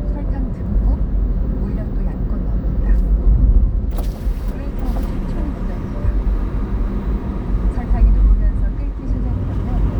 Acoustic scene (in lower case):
car